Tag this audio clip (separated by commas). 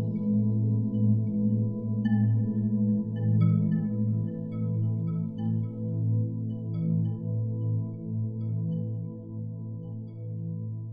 Singing bowl